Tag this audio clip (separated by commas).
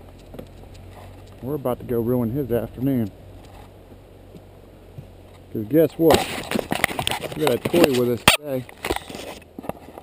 outside, rural or natural, Speech